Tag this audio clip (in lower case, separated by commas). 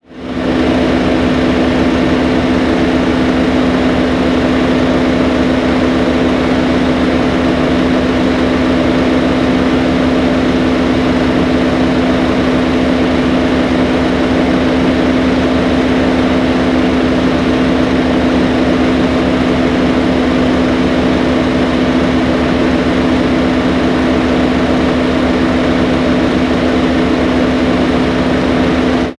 idling, vehicle, motor vehicle (road), engine, car